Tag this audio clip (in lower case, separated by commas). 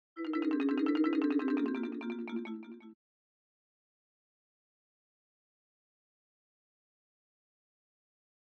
xylophone, musical instrument, music, mallet percussion, percussion